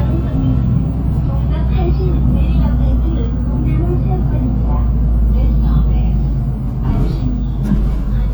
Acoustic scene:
bus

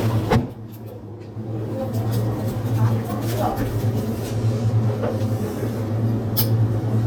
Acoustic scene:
crowded indoor space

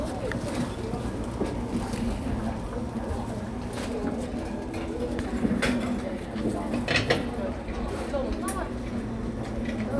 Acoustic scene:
cafe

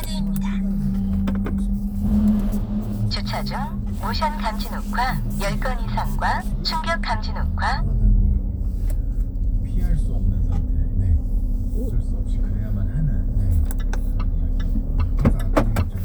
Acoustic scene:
car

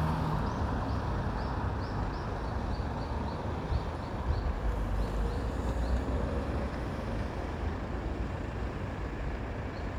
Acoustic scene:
street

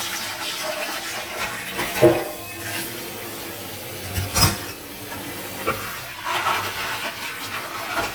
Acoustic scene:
kitchen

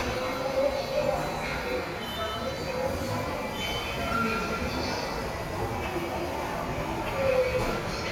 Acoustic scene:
subway station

